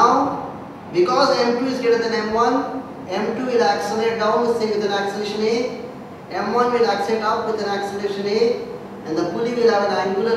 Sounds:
Speech

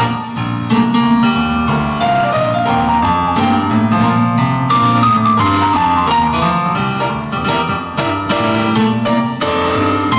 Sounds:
Music

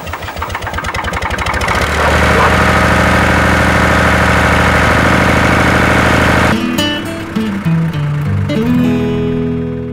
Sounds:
Music

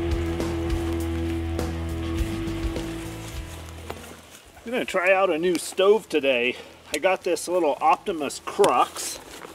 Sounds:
Music, Speech

